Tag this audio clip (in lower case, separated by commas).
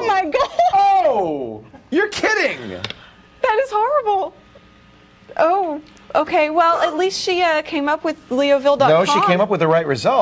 speech